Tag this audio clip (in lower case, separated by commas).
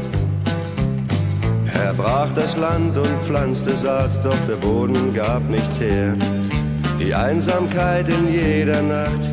music